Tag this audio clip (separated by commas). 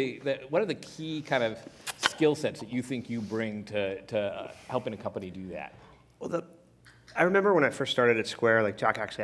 Speech